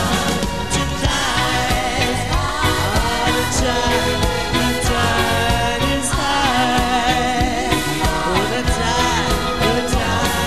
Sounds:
Music, Singing

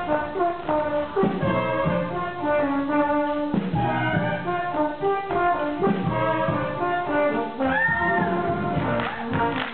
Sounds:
Music, inside a large room or hall

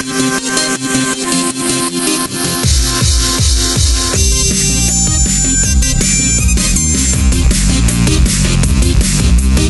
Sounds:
Theme music, Music, Techno, Drum and bass, Dubstep

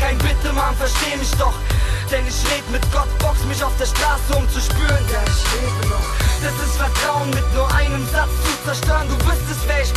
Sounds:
Music

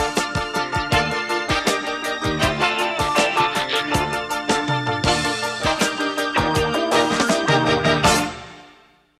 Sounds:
Music

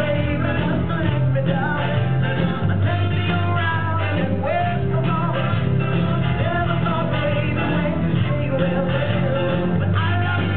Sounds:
Singing, Music

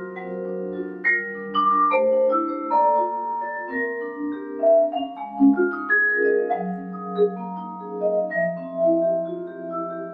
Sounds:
Mallet percussion, Marimba, playing marimba, Glockenspiel

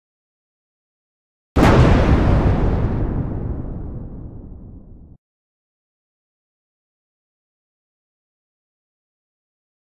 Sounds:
Explosion

